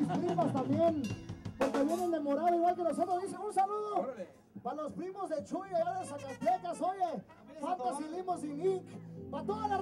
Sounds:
Music, Speech

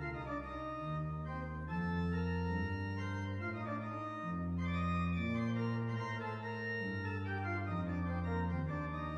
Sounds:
Hammond organ, Organ

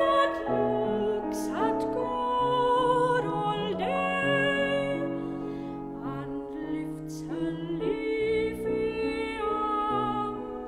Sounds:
Music, Female singing

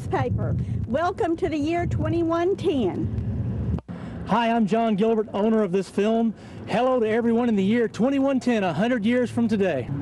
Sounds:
Speech

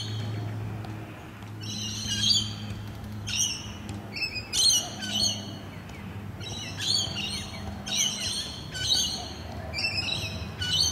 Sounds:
Chirp, Bird, bird call

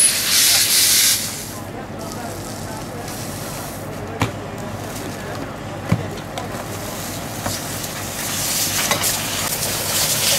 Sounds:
Speech

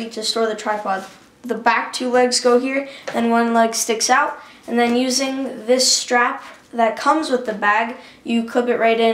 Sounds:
Speech

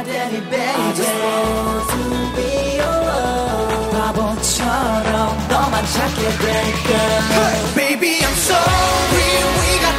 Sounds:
Music of Asia, Singing, Music

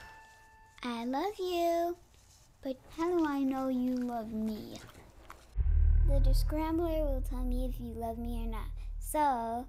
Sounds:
Speech

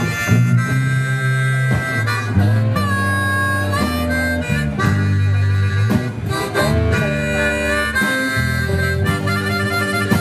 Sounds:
Music, Blues

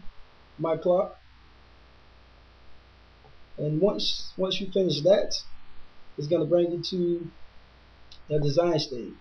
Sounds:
Speech

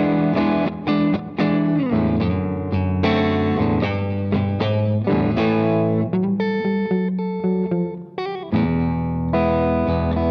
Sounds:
Music

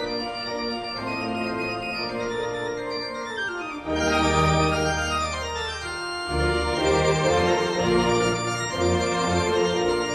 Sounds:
Electronic organ, Organ

